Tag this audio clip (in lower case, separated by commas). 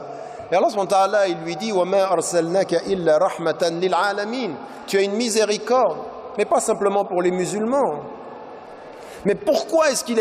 speech